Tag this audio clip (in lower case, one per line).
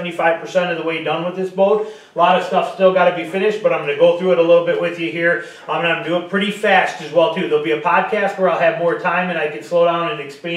speech